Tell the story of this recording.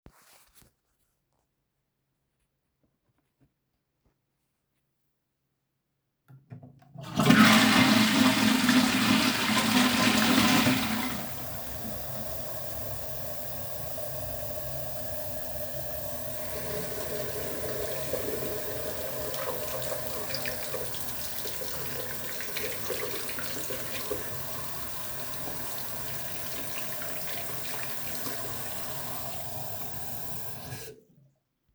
I flushed the toilet while the bathroom tap ran. The toilet's gurgle and running water overlapped for 2 seconds.